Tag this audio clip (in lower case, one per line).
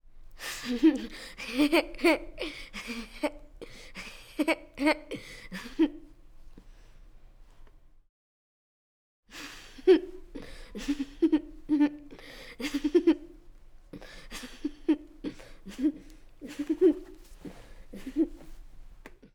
chuckle
human voice
laughter